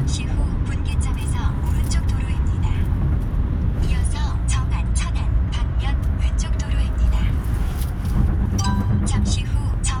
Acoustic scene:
car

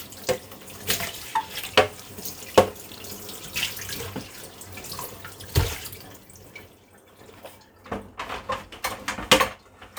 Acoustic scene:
kitchen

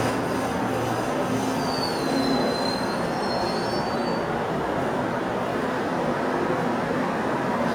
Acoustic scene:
subway station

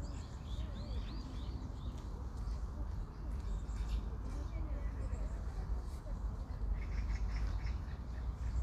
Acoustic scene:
park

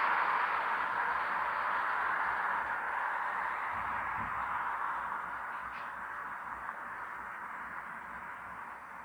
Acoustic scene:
street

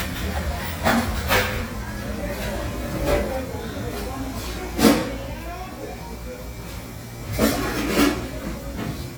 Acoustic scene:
cafe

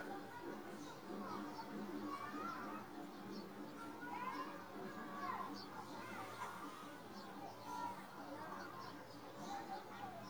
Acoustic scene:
residential area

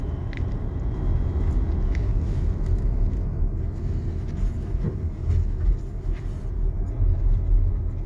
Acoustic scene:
car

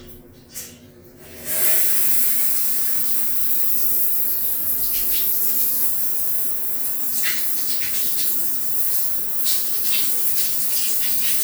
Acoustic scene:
restroom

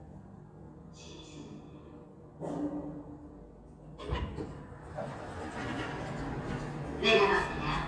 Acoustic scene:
elevator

